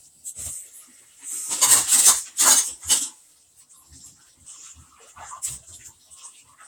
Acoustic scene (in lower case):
kitchen